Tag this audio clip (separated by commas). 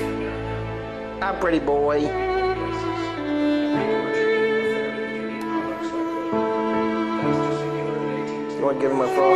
Bowed string instrument, Music, Speech, Cello